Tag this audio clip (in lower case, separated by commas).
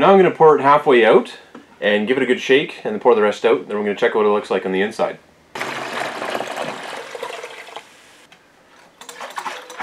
liquid, inside a small room, speech